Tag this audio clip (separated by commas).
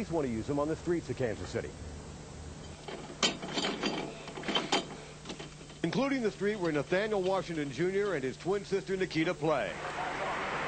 Speech